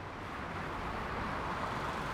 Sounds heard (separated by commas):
motorcycle, car, car wheels rolling, motorcycle engine accelerating